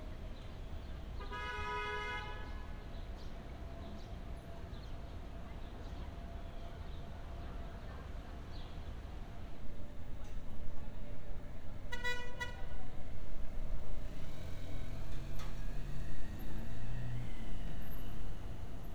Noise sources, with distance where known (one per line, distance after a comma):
car horn, near